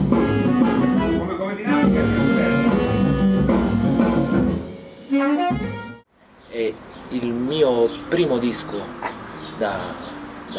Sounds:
Speech, Music

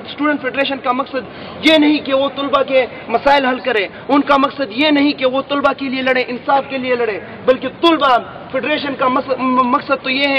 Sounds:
Narration, Speech, man speaking

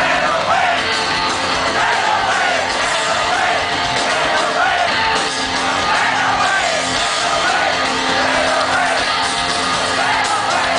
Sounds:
Music, Psychedelic rock, Rock music

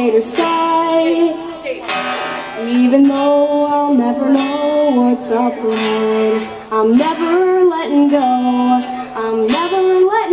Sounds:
Music, Speech

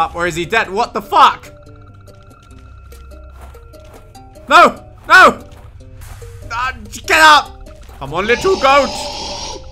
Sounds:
Speech

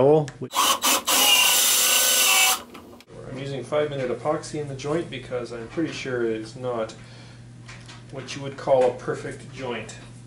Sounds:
Wood, Rub

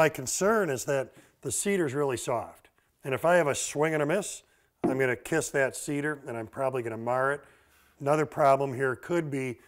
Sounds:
Wood, Speech

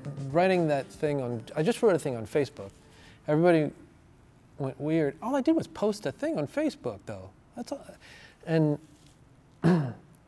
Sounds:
Speech

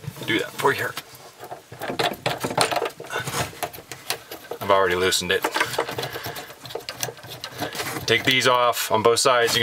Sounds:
Speech

